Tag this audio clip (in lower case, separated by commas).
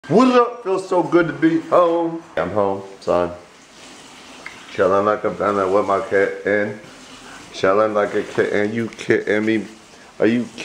inside a large room or hall, speech